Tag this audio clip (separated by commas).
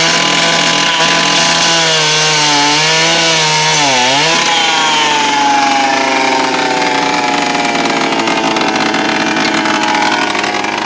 Tools, Power tool